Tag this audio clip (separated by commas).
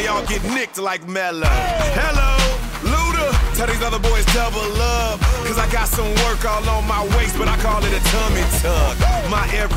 Pop music, Music